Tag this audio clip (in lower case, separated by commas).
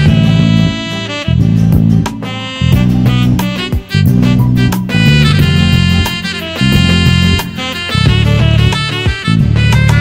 swing music